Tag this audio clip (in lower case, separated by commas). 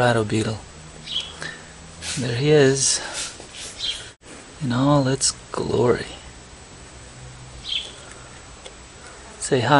bird, speech